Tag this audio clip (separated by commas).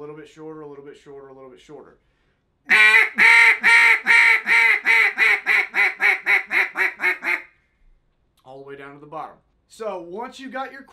duck quacking